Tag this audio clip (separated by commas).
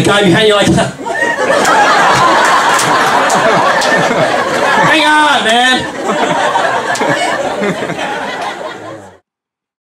Speech